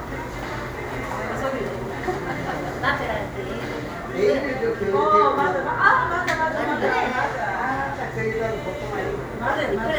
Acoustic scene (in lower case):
cafe